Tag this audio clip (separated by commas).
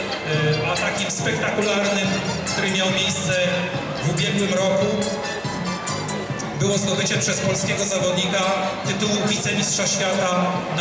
Speech, Music